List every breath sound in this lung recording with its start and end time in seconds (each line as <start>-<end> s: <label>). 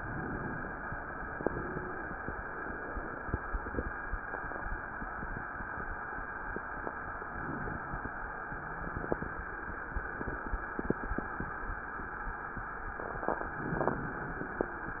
0.00-0.97 s: inhalation
1.27-2.13 s: wheeze
7.32-8.18 s: inhalation
8.37-9.53 s: wheeze
13.45-14.78 s: inhalation